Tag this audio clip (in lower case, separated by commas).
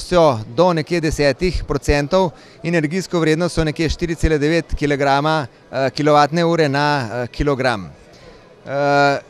speech